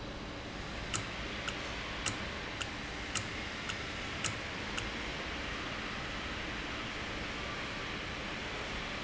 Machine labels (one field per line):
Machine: valve